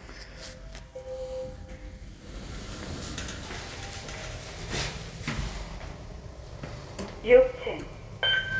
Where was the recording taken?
in an elevator